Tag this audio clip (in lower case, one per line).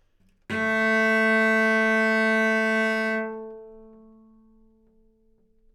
music
musical instrument
bowed string instrument